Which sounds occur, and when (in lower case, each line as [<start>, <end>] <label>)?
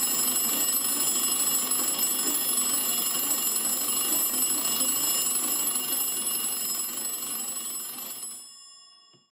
[0.00, 8.40] mechanisms
[0.00, 9.28] bicycle bell
[9.10, 9.18] generic impact sounds